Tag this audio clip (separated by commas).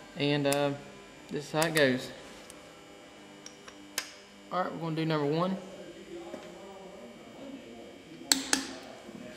Speech